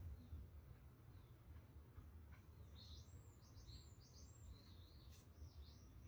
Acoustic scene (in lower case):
park